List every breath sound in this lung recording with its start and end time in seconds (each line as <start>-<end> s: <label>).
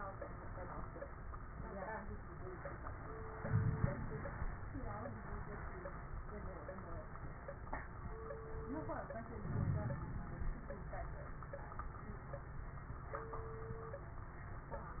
3.41-4.50 s: inhalation
3.41-4.50 s: crackles
9.44-10.52 s: inhalation
9.44-10.52 s: crackles